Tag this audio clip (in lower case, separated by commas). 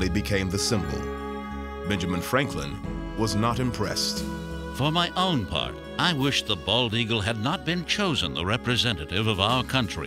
music, speech